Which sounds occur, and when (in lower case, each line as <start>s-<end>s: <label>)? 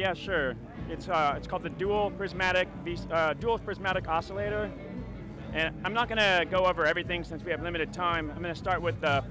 0.0s-0.5s: male speech
0.0s-9.3s: music
0.7s-2.7s: male speech
2.8s-4.7s: male speech
5.6s-9.3s: male speech